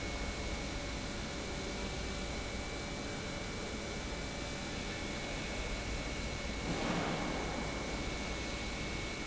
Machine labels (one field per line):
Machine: pump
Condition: normal